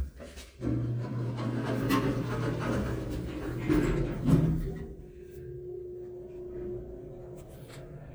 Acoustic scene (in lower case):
elevator